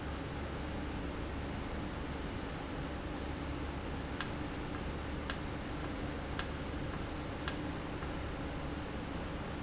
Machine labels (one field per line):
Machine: valve